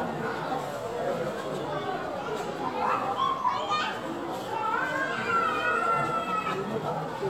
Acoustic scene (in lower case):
crowded indoor space